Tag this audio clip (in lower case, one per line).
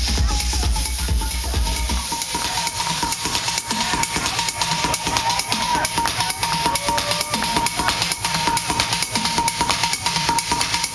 music
disco